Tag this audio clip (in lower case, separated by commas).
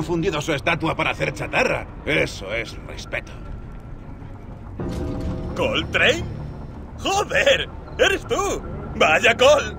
speech